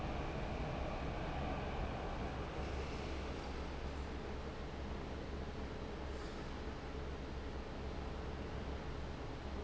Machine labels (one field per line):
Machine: fan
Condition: abnormal